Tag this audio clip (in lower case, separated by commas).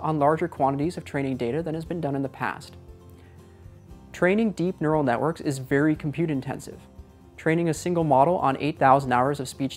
speech, music